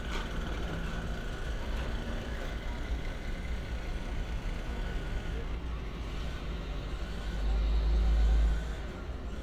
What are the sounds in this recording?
engine of unclear size